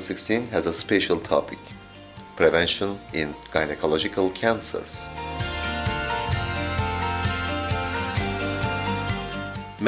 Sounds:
Music, Speech

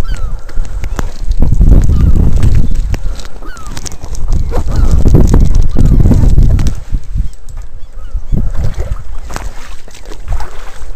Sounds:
Animal, Goose

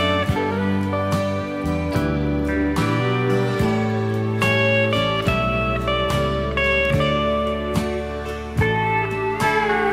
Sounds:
Music

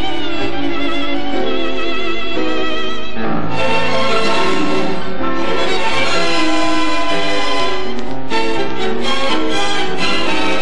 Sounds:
Bowed string instrument, Musical instrument, Music, Orchestra, Accordion

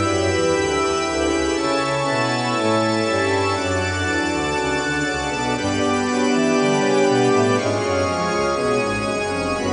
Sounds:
Music, Soundtrack music

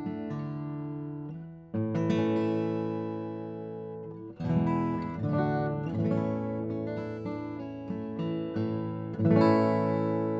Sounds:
Acoustic guitar, Music, Guitar

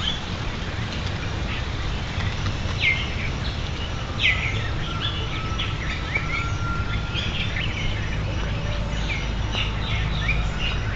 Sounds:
woodpecker pecking tree

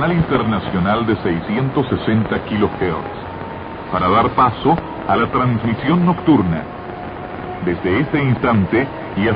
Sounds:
Speech, Radio

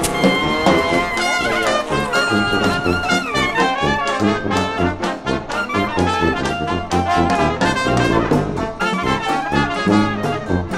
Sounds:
Music, Funny music

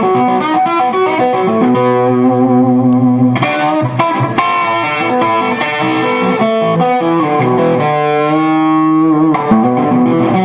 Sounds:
Music

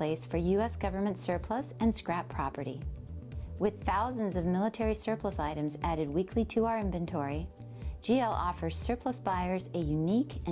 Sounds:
Speech, Music

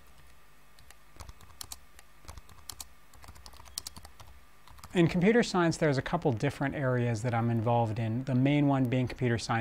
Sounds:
Speech

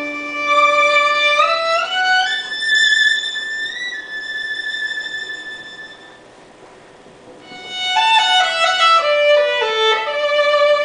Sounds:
Music, fiddle, Musical instrument

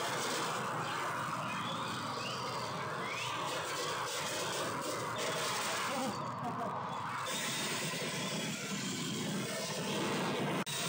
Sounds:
Vehicle, Car passing by

